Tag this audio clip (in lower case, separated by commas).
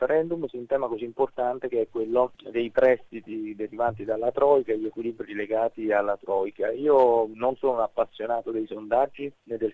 speech, radio